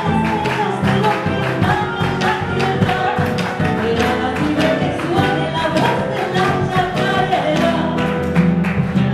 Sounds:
music
singing
inside a small room

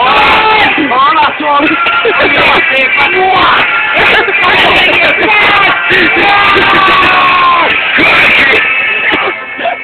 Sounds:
speech

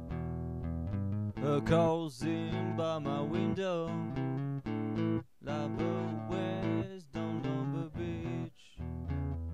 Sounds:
plucked string instrument
music
acoustic guitar

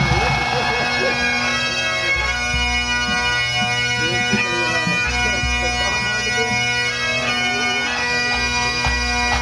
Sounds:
playing bagpipes
wind instrument
bagpipes

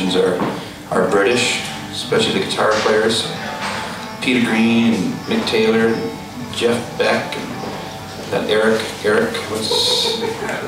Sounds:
music
speech

